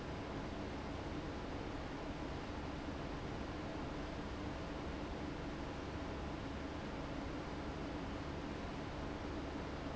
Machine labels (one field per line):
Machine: fan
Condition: abnormal